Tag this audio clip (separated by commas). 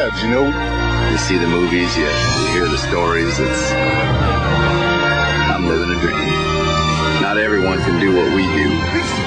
Music, Speech